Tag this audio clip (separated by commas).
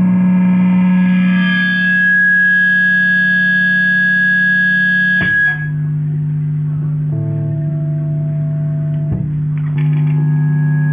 Reverberation, Musical instrument, Guitar, Music, Plucked string instrument, inside a small room